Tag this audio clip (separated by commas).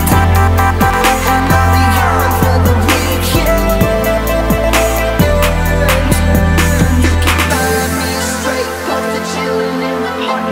Pop music, Hip hop music, Music